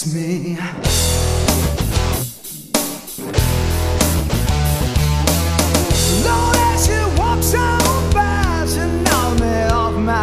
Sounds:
music

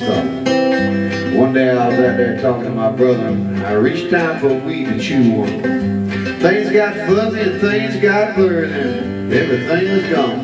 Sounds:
speech, music

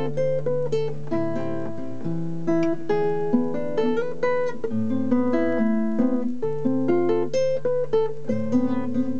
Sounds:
strum, musical instrument, plucked string instrument, electric guitar, music, guitar

